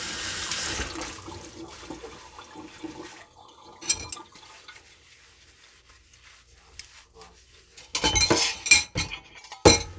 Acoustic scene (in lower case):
kitchen